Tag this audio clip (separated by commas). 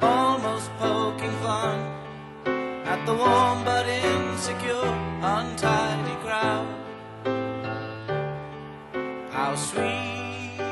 Music